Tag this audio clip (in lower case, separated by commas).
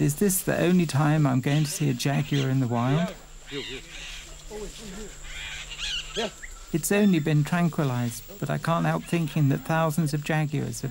outside, rural or natural, speech, animal